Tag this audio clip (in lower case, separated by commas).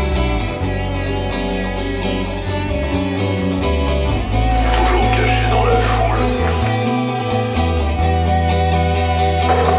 music